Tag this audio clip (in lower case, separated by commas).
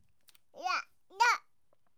human voice, speech